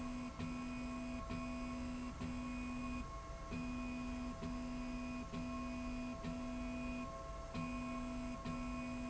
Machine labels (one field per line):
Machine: slide rail